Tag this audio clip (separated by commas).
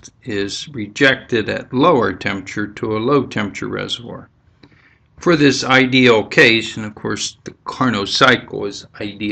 Speech